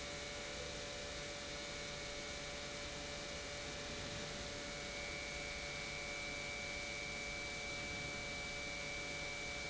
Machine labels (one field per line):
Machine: pump